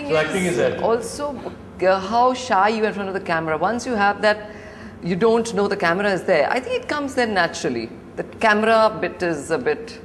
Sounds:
conversation, speech

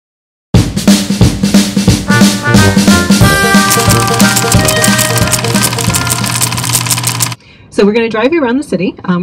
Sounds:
cymbal, drum, snare drum, hi-hat, drum kit

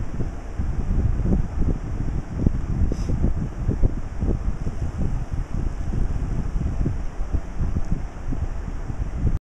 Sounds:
wind noise (microphone)

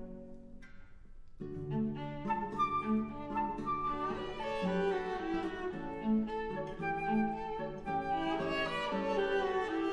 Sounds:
cello, playing cello, bowed string instrument, musical instrument, classical music, fiddle, music

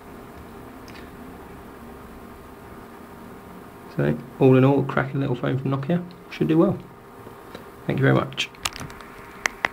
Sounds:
inside a small room, speech

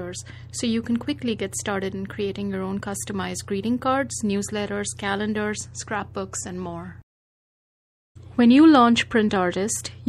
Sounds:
speech, inside a small room

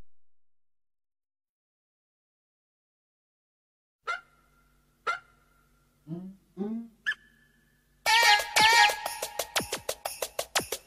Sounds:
music, silence

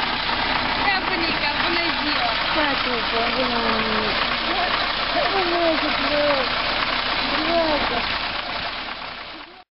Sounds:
vehicle, speech

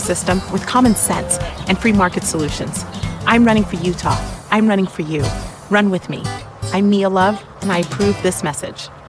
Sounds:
speech, music

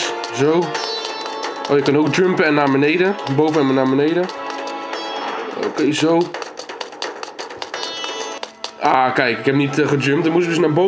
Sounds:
music, speech, run

